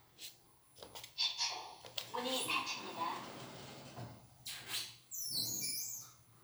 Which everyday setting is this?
elevator